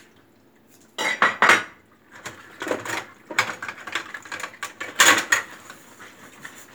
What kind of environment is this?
kitchen